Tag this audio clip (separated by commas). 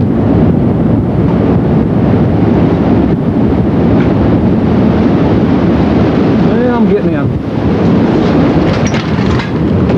tornado roaring